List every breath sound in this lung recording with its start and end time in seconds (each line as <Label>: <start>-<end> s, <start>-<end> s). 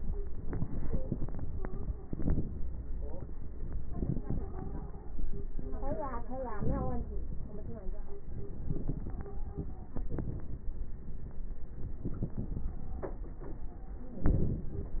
Inhalation: 6.57-7.25 s, 14.11-14.98 s
Stridor: 1.50-2.08 s, 3.86-5.18 s, 8.73-9.99 s
Crackles: 6.57-7.25 s